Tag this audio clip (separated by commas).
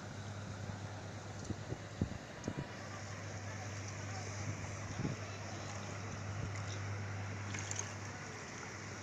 outside, urban or man-made